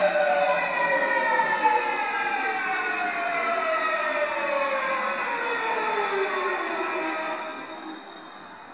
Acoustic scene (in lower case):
subway station